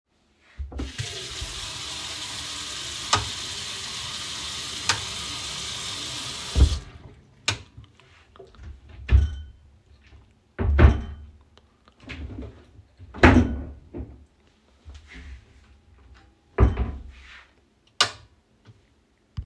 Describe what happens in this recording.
I open the faucet, flip a light switch on and off, close the faucet, flip the light on, open and close 3 different cabinets, then flip the light off.